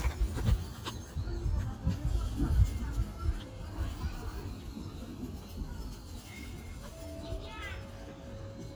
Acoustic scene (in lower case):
residential area